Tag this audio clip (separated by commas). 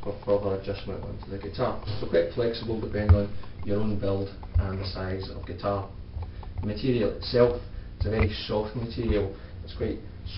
Speech